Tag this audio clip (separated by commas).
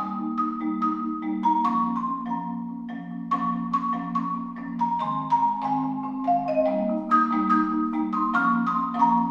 Music